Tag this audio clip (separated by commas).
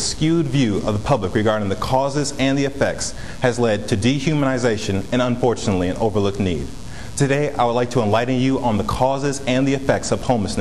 Speech, man speaking, Narration